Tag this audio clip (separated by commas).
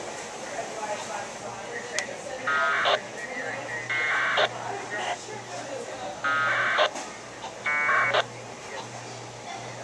Radio, inside a small room, Speech